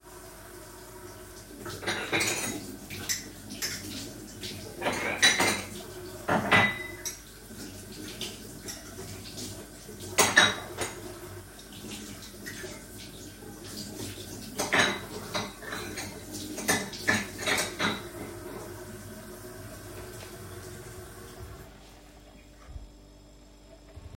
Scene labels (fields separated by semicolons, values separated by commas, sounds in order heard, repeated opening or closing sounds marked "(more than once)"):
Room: kitchen; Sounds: running water, cutlery and dishes